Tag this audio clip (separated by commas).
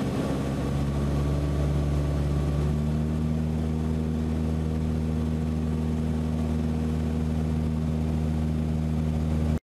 Eruption